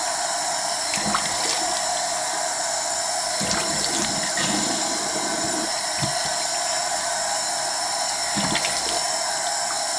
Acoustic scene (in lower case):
restroom